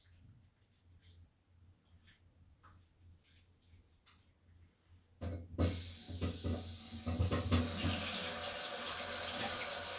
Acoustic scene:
restroom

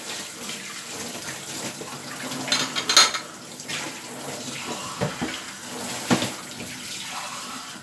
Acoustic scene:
kitchen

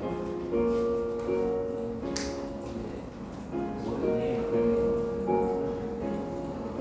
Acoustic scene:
crowded indoor space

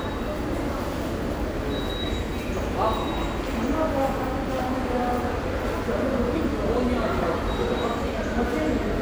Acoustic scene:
subway station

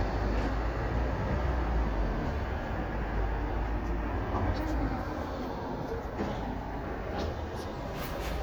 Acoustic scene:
street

